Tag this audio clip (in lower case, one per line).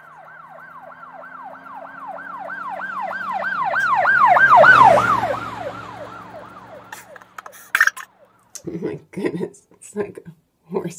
siren
emergency vehicle
ambulance (siren)